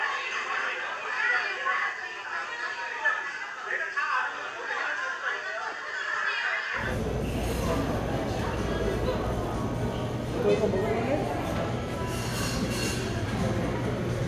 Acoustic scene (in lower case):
crowded indoor space